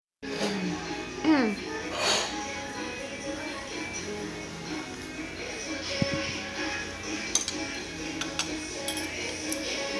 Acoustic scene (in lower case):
restaurant